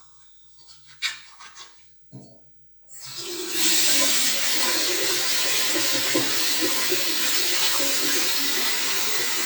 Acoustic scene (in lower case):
restroom